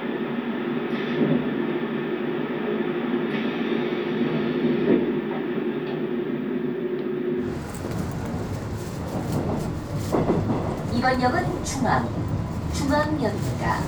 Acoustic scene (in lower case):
subway train